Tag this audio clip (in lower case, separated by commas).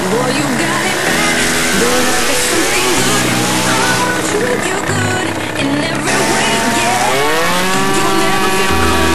vehicle, motorcycle, tire squeal